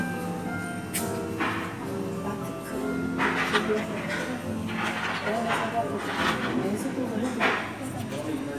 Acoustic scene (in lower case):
cafe